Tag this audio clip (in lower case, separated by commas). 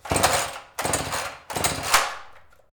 engine